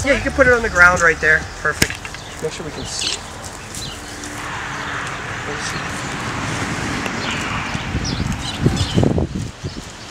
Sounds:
outside, rural or natural, Speech

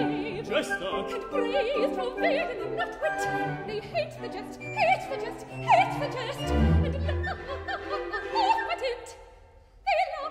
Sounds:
Classical music, Music, Orchestra, Singing, Opera

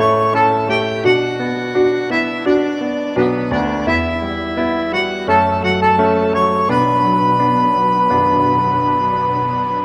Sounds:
Background music

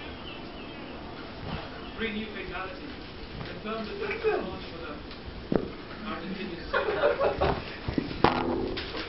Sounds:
Speech

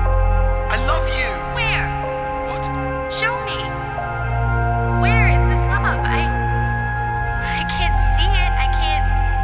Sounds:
Speech, Music

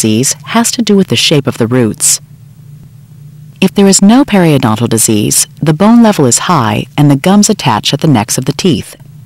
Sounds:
Speech

